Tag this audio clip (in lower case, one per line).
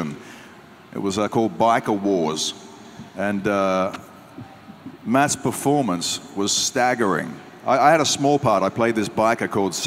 speech